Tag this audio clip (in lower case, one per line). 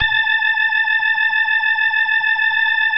keyboard (musical)
musical instrument
music
organ